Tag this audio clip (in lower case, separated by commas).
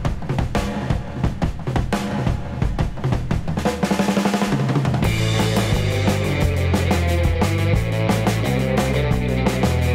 music, drum kit